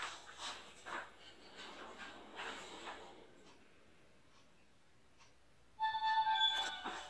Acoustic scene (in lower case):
elevator